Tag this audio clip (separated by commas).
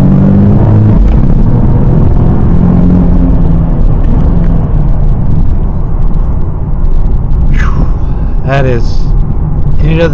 Car, Vehicle, Speech